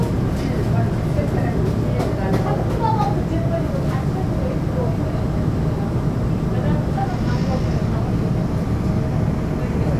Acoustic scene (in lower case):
subway train